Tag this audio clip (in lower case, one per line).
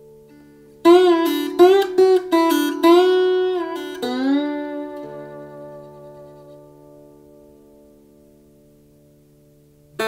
music